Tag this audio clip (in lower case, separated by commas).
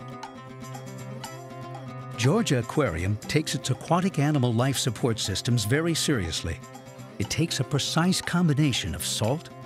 music, speech